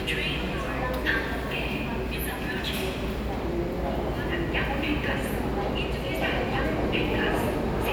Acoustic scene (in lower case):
subway station